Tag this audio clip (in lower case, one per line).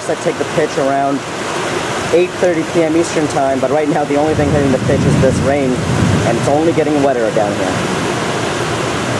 speech
waterfall